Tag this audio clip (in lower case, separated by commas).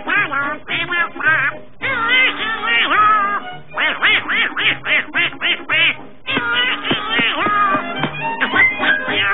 quack, music